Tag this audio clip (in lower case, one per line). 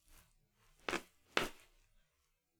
walk